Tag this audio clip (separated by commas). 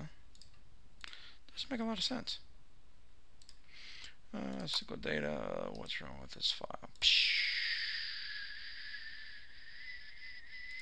Speech